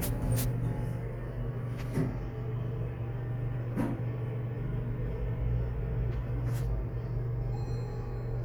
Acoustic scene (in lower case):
elevator